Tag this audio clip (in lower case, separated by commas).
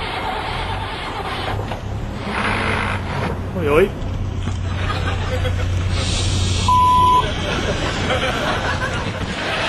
engine starting, speech, car, vehicle